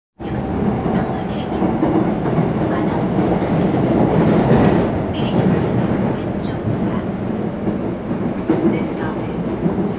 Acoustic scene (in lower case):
subway train